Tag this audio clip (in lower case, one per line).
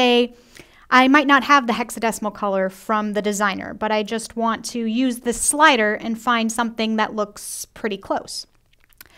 speech